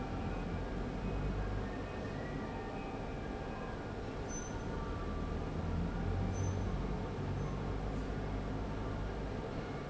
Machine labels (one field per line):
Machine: fan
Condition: abnormal